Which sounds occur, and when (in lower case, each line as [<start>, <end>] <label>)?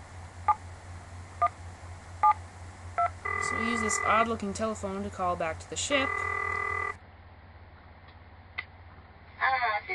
[0.00, 9.94] mechanisms
[0.47, 0.53] dtmf
[1.39, 1.47] dtmf
[2.20, 2.31] dtmf
[2.95, 3.06] dtmf
[3.21, 4.22] telephone bell ringing
[3.45, 9.94] conversation
[3.49, 6.05] female speech
[5.88, 6.93] telephone bell ringing
[8.05, 8.10] tick
[8.57, 8.62] tick
[9.35, 9.94] female speech